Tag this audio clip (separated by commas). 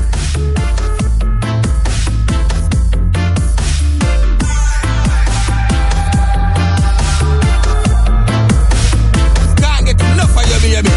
Electronic music, Dubstep, Music